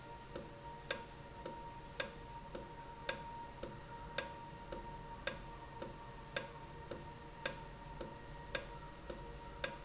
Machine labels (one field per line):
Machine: valve